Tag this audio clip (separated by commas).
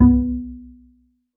Bowed string instrument, Music, Musical instrument